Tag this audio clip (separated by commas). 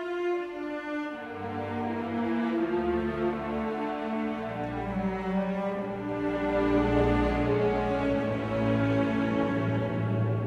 Violin, Music, Musical instrument